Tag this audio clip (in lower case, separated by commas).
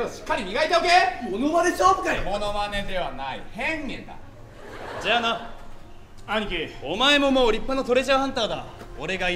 laughter, speech, music